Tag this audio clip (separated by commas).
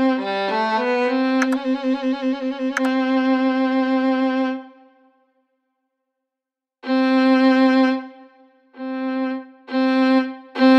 Music